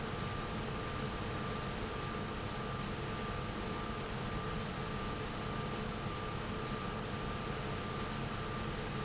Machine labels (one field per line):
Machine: pump